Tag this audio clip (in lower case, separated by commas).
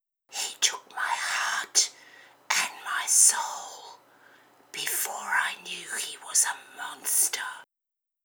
speech, human voice